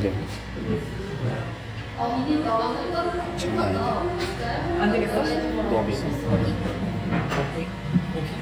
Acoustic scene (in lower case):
cafe